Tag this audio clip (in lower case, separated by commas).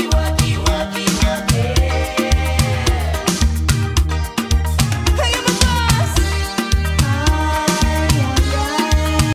music